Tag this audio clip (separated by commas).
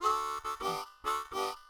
Music, Harmonica, Musical instrument